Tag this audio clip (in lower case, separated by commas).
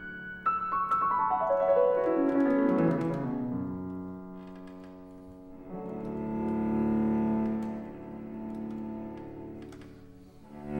cello, classical music, bowed string instrument, music, musical instrument, piano